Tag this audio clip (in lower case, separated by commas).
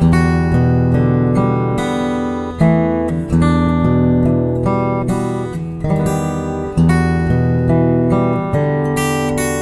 music, guitar